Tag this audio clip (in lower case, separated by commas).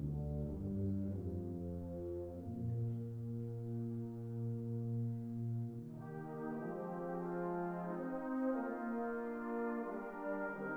music